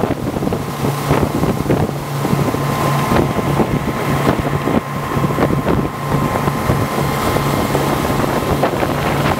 Wind gusts by as an engine hums